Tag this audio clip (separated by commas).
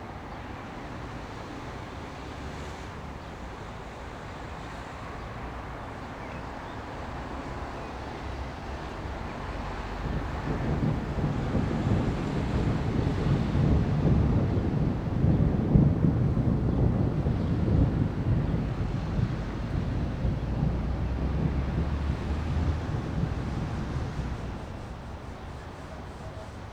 Thunder, Thunderstorm